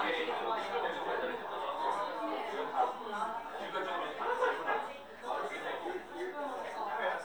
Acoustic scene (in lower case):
crowded indoor space